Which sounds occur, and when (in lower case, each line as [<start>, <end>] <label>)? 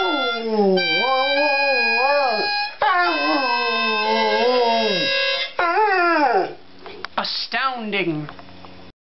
[0.00, 0.48] music
[0.00, 2.50] whimper (dog)
[0.00, 8.89] mechanisms
[0.74, 2.71] music
[2.78, 5.04] whimper (dog)
[2.99, 5.42] music
[5.58, 6.55] whimper (dog)
[6.81, 7.04] generic impact sounds
[6.83, 6.85] tick
[7.01, 7.04] tick
[7.14, 7.18] tick
[7.16, 8.25] female speech
[7.49, 7.52] tick
[8.26, 8.30] tick
[8.35, 8.39] tick
[8.45, 8.50] tick
[8.61, 8.64] tick